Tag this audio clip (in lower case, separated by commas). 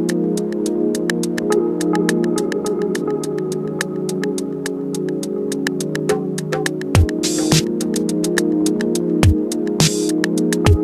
funk, music